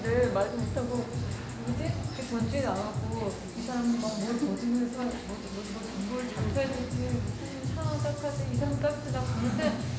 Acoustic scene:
cafe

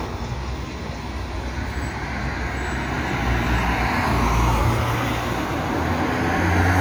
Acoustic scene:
street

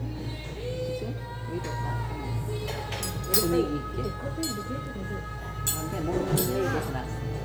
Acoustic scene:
restaurant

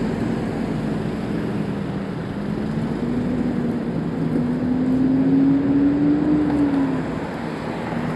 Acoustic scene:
street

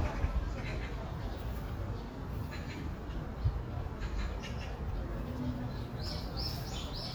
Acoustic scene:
park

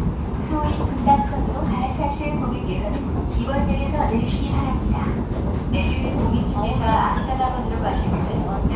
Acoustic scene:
subway train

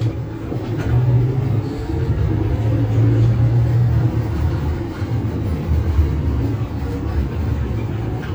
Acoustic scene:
bus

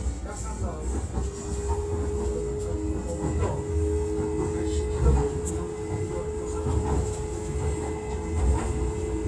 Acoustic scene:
subway train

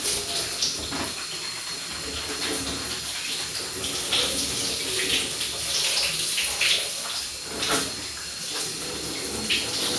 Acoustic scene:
restroom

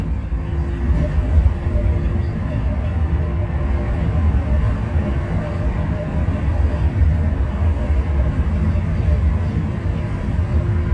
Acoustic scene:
bus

